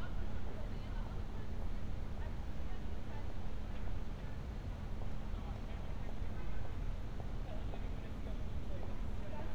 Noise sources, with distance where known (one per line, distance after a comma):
person or small group talking, far